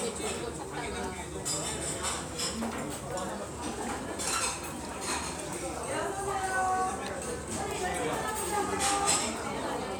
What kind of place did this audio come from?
restaurant